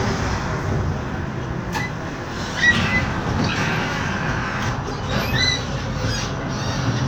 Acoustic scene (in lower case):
bus